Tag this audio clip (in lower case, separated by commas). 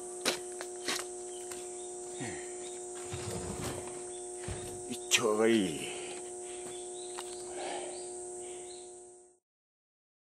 speech